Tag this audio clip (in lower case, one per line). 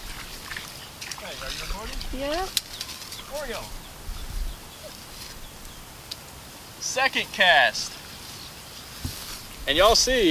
speech